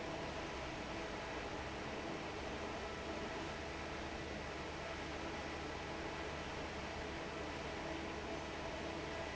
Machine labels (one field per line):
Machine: fan